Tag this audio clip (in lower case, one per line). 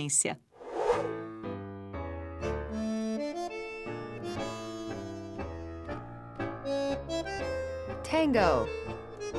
music
speech